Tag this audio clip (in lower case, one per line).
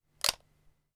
camera
mechanisms